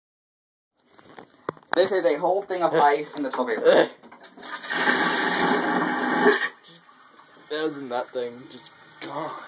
Rustling with men speaking then loud vibrations and rustling